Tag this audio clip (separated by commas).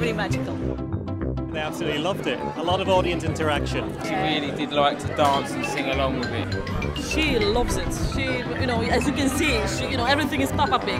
Speech, Music